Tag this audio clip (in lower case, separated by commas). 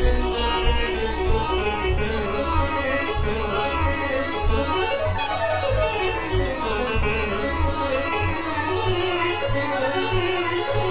plucked string instrument, musical instrument, guitar